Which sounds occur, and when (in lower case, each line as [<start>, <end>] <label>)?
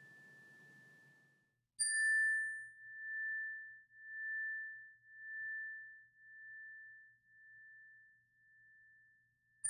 [0.00, 1.53] chime
[0.00, 9.65] background noise
[1.78, 9.65] chime